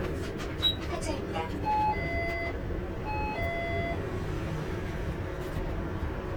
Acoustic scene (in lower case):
bus